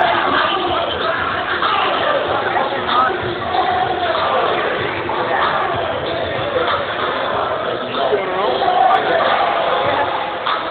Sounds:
Music, Speech

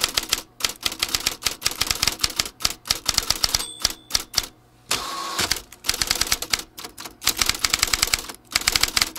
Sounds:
Ding

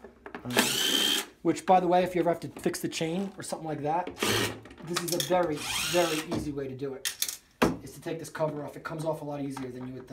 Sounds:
Speech

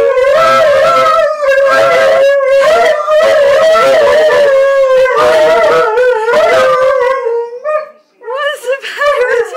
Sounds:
Speech, Animal, Domestic animals, Dog

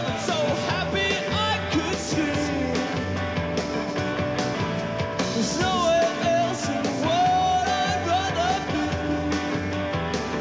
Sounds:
Music

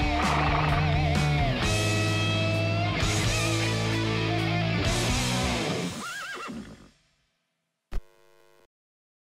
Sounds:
Music, Neigh

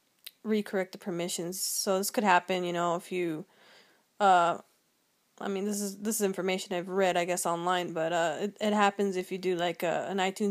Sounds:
Speech

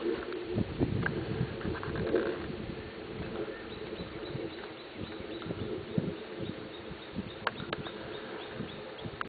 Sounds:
Animal

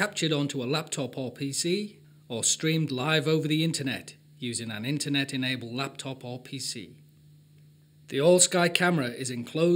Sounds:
Speech

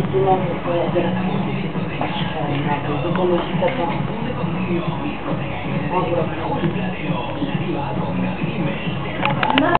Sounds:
Music, Speech

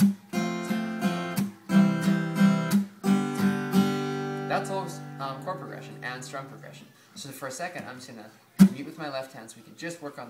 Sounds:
Strum, Guitar, Musical instrument, Speech, Music, Acoustic guitar, Plucked string instrument

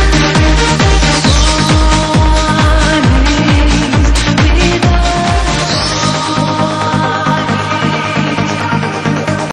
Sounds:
Music

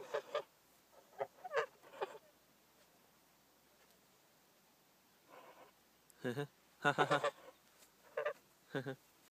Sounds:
Honk

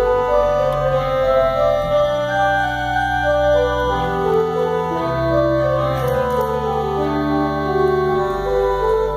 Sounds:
Organ, Hammond organ

